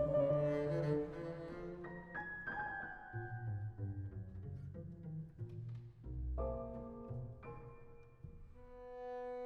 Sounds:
playing double bass

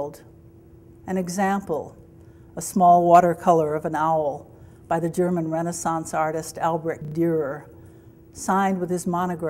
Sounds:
speech

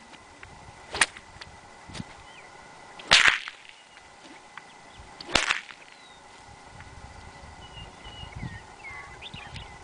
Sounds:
whip

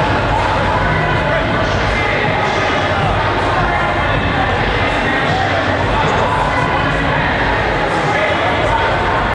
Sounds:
speech

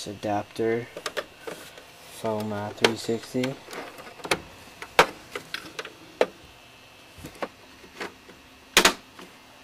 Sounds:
inside a small room, speech

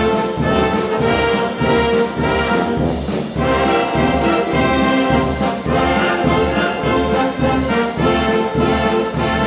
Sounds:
music

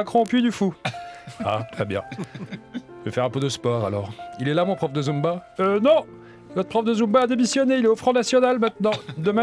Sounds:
music, speech

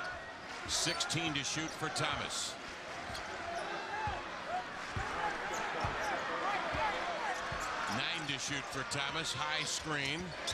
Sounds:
speech, basketball bounce

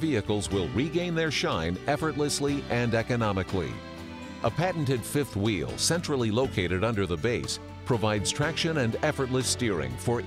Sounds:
music, speech

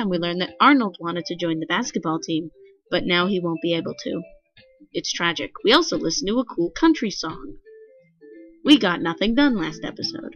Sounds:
speech, music

